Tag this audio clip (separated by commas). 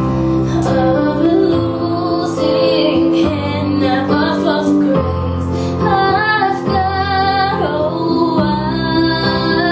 Female singing, Music